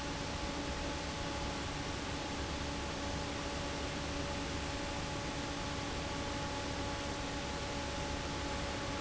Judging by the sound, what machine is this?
fan